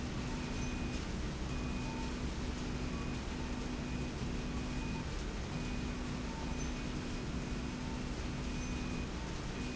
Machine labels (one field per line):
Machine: slide rail